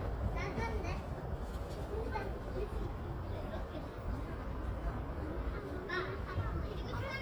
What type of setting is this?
residential area